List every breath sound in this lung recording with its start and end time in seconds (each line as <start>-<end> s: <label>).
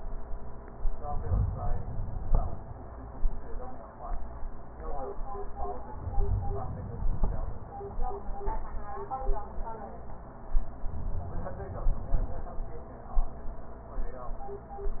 0.98-2.44 s: inhalation
5.98-7.45 s: inhalation
10.86-12.59 s: inhalation